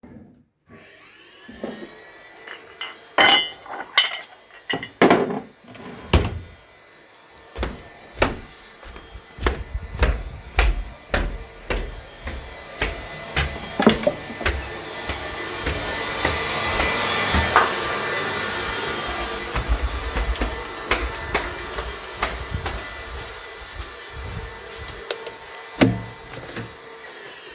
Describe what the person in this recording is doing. I bring some coffe mugs to wash while cleaning came to kitchena and i left the kitchen afer leaving mugs over shelf.